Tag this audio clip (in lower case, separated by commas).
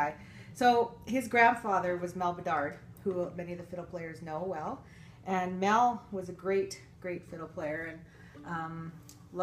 speech